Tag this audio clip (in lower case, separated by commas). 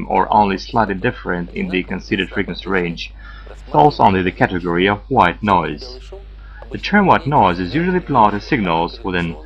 speech